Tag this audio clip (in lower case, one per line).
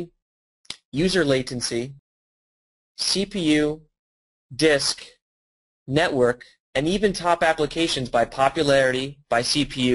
speech